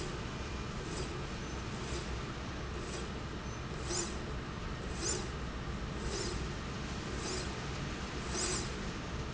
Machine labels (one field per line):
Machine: slide rail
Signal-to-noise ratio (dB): -6 dB